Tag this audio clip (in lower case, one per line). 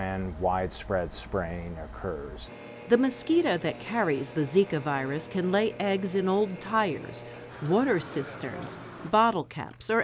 speech